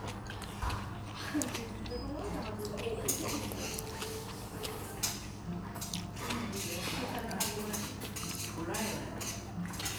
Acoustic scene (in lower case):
restaurant